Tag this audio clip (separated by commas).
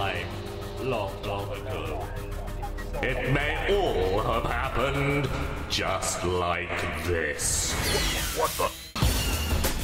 Music, Speech